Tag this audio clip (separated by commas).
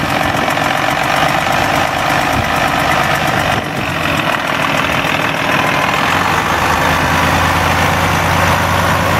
Engine